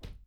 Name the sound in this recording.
wooden cupboard closing